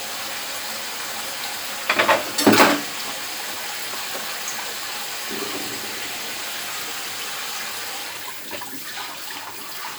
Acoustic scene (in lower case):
kitchen